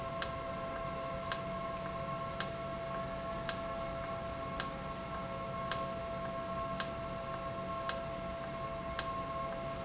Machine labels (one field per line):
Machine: valve